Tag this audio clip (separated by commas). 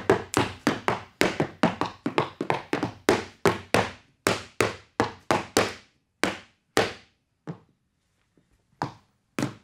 tap dancing